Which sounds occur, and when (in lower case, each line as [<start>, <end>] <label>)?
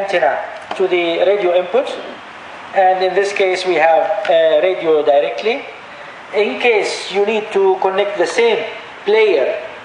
[0.00, 9.84] mechanisms
[0.01, 0.52] man speaking
[0.01, 9.84] background noise
[0.66, 2.27] man speaking
[2.73, 3.97] man speaking
[4.21, 5.60] man speaking
[6.22, 8.79] man speaking
[8.98, 9.84] man speaking